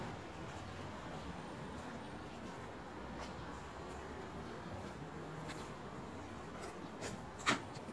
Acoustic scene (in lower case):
residential area